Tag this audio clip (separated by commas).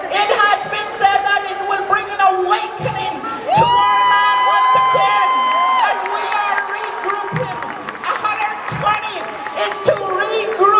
Cheering, Speech